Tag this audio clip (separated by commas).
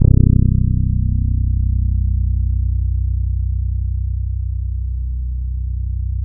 Music, Guitar, Bass guitar, Plucked string instrument, Musical instrument